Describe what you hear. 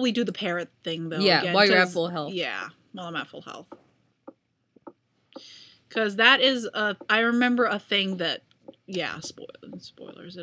A woman speaks shortly followed by an another woman speaking and two women speak back to back as a surface is tapped several times in the background